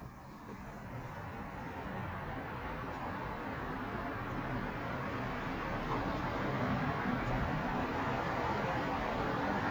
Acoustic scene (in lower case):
residential area